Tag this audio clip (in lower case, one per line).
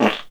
fart